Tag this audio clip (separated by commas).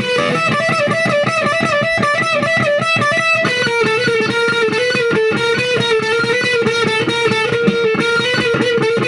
Music, Plucked string instrument, Musical instrument, Electric guitar